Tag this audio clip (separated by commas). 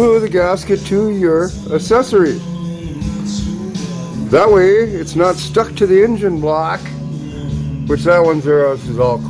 Speech, Music